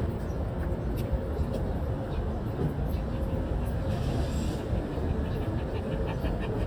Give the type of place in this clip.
residential area